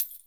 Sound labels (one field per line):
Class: object falling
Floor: carpet